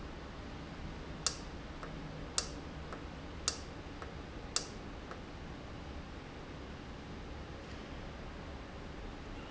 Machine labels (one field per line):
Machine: valve